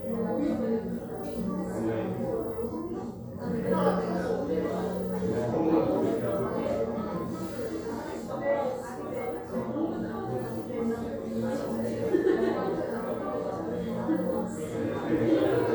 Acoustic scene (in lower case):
crowded indoor space